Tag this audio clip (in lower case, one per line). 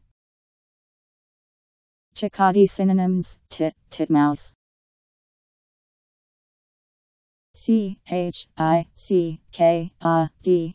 black capped chickadee calling